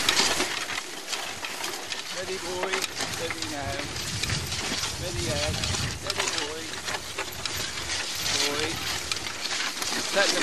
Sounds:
speech

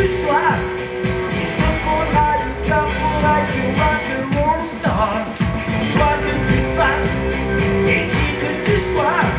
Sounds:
music, roll

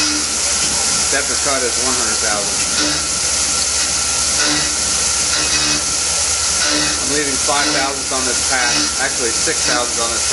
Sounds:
drill, speech, tools

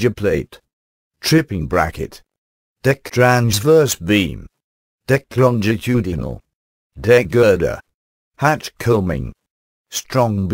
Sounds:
speech

